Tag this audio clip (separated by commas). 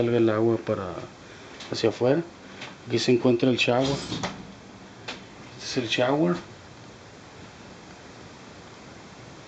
inside a small room, Speech, Sliding door